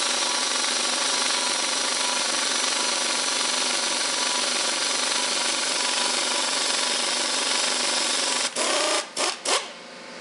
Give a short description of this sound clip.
A power tool vibrates as it runs